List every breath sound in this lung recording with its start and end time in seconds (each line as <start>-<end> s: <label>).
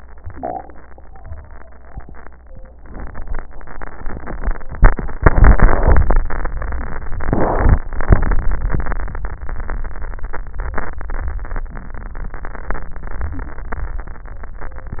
No breath sounds were labelled in this clip.